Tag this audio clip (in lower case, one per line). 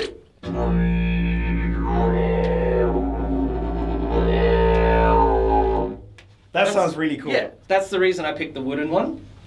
playing didgeridoo